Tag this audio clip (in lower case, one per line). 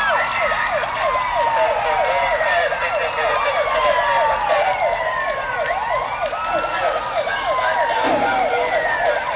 vehicle